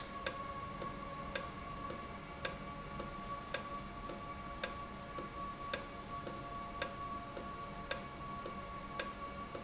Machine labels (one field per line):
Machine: valve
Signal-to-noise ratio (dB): 0 dB